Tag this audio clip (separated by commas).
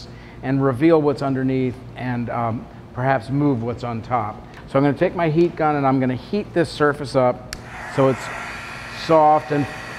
Speech